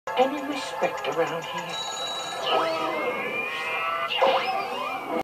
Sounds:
Speech, Music

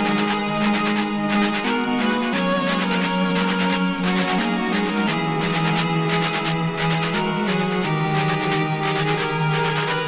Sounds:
Music

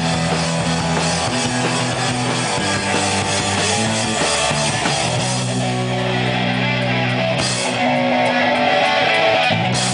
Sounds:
Music

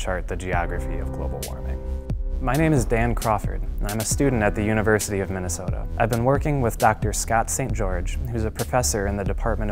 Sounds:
Music, Speech

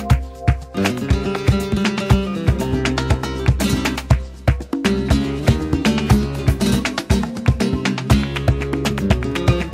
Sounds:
Music

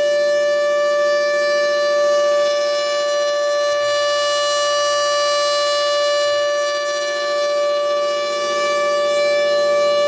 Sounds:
Civil defense siren, Siren

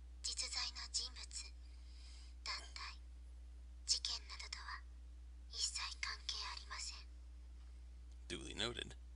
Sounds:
Speech

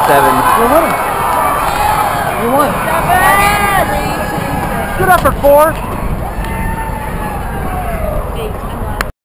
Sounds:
Animal, Speech

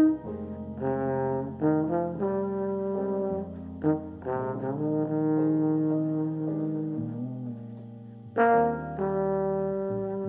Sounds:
Music, Brass instrument, Trombone

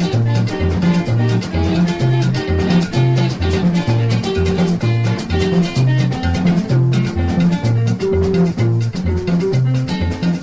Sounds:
Music of Latin America, Music, Salsa music

